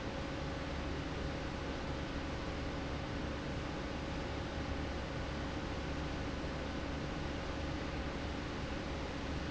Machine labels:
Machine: fan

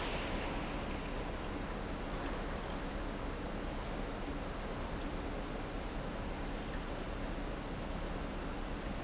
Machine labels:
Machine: pump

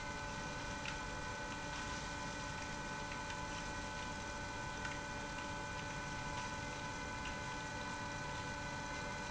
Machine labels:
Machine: pump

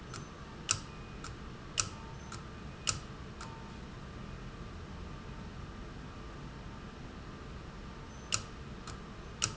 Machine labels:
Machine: valve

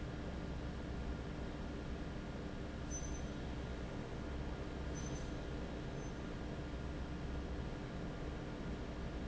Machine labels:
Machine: fan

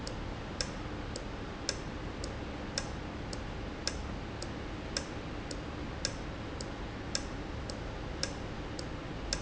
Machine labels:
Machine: valve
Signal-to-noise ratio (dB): -6 dB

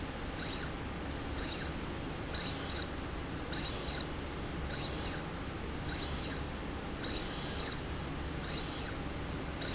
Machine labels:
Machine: slide rail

